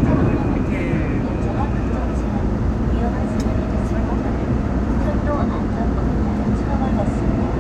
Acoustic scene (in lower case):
subway train